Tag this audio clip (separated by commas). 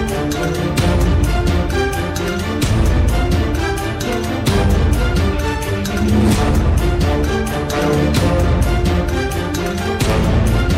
Music